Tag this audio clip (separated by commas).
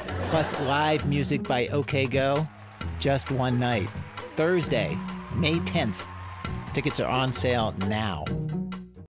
Speech, Music